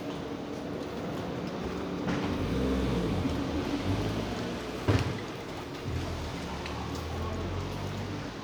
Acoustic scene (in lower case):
residential area